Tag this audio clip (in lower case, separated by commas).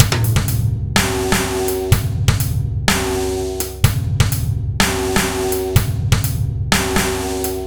snare drum, drum, percussion, bass drum, musical instrument, drum kit, music